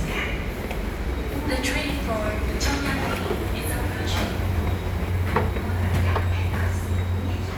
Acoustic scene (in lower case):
subway station